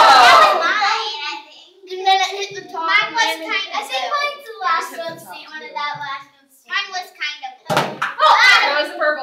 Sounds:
speech, kid speaking, inside a small room

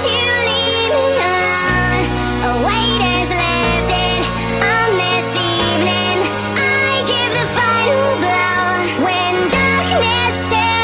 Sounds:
music

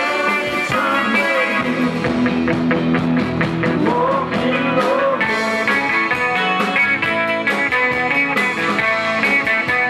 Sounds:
music

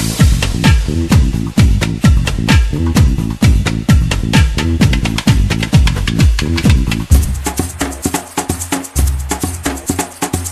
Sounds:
music

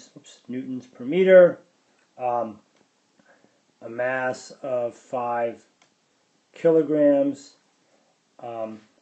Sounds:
speech

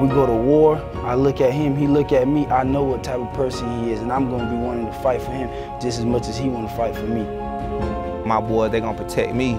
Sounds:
speech, music

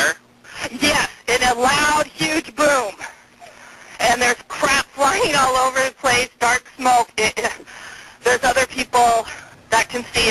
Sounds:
speech

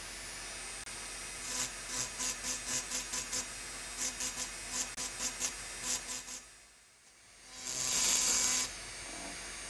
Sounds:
electric razor

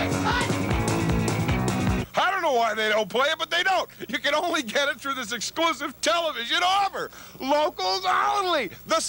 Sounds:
music, speech

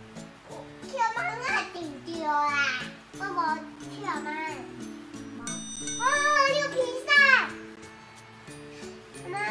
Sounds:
baby babbling

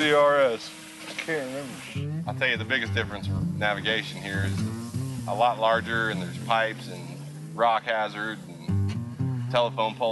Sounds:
music, speech

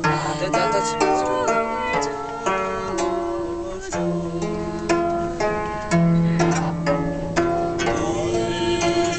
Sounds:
choir, male singing, music, female singing

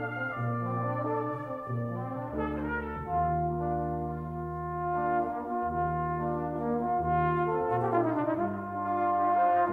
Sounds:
brass instrument, music, trombone

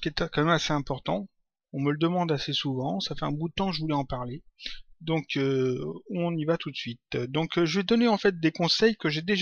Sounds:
speech

